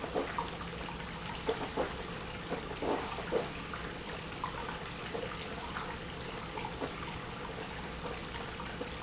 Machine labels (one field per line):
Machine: pump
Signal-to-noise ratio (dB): 0 dB